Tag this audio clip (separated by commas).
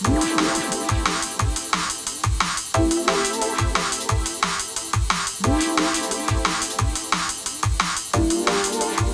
Music, Sound effect